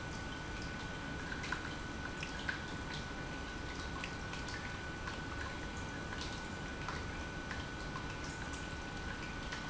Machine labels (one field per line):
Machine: pump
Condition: normal